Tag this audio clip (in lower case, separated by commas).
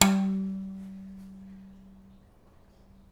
musical instrument, bowed string instrument, music